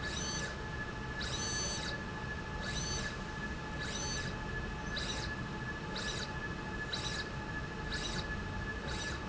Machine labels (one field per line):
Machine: slide rail